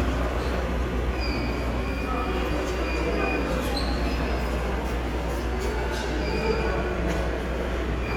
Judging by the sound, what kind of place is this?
subway station